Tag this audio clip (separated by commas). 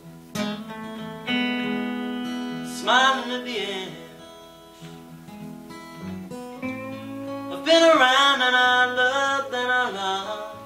Music